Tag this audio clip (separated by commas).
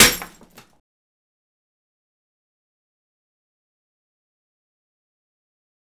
Glass, Shatter